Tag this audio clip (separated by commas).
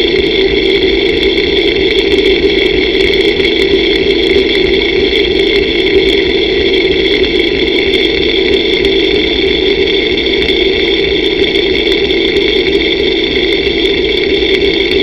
Mechanisms